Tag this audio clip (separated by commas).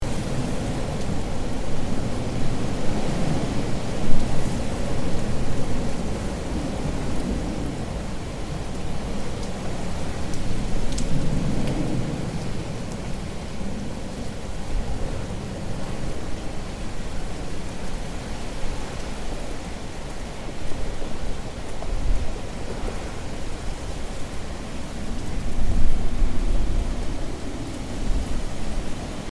Rain, Water